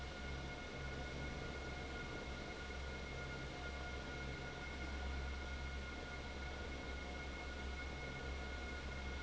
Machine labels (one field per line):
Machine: fan